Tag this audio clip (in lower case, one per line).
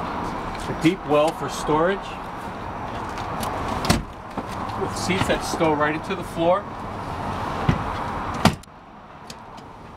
car
vehicle